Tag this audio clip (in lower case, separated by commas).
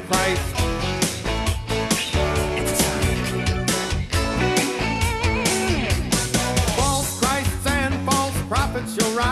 pop music, music